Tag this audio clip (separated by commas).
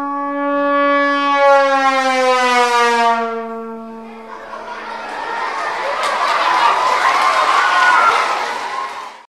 Music